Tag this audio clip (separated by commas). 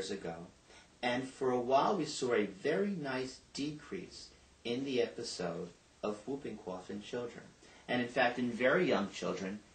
Speech